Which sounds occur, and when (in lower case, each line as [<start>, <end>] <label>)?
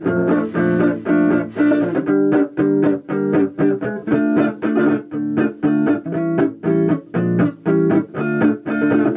[0.00, 9.15] background noise
[0.00, 9.15] music